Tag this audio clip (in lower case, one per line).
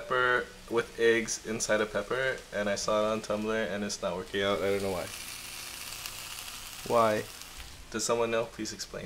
inside a large room or hall
speech